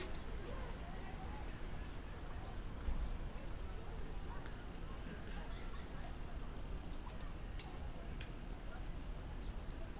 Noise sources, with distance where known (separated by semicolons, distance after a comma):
person or small group talking, far